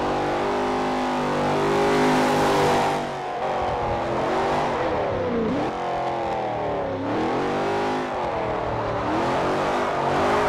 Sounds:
motor vehicle (road), vehicle, car

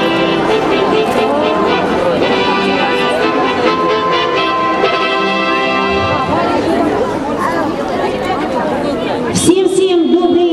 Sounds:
speech, music

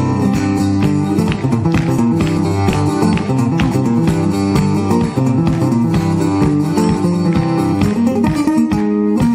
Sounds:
music

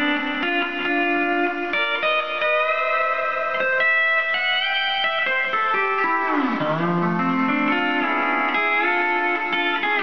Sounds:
music, steel guitar

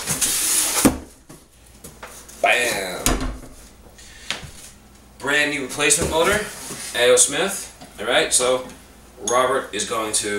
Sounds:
inside a small room, speech

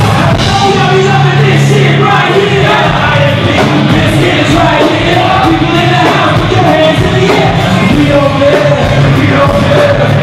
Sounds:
singing, music, inside a large room or hall

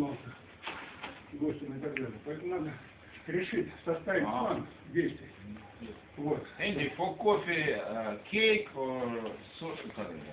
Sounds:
speech

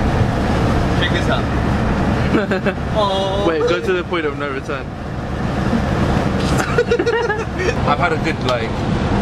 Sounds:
bus

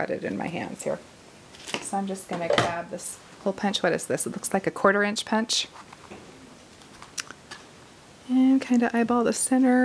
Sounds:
speech, inside a small room

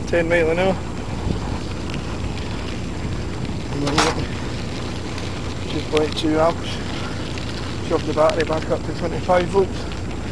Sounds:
speech, bicycle

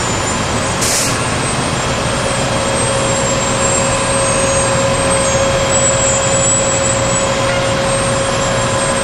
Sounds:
heavy engine (low frequency)

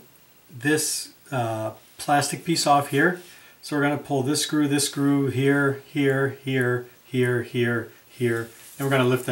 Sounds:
speech, inside a small room

